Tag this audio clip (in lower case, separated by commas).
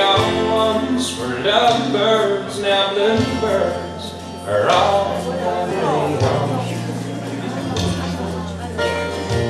country, music, speech